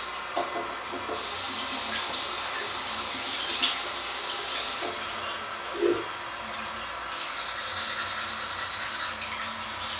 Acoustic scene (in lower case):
restroom